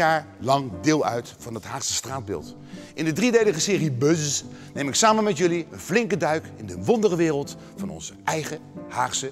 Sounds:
speech, music

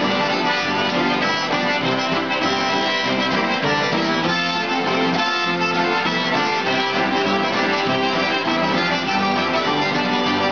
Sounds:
music, jazz

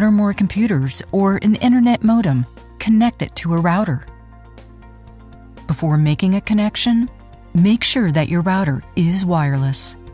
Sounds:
speech, music

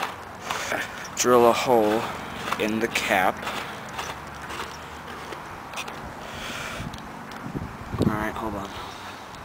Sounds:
speech

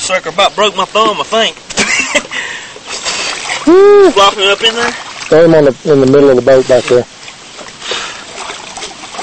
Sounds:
speech

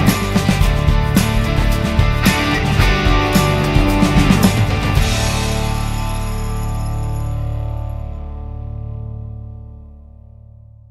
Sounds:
music, rattle

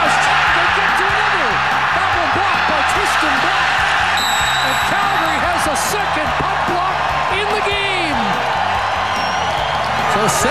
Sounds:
music, speech

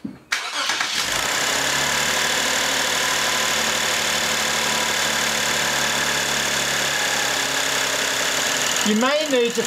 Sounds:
vehicle, speech

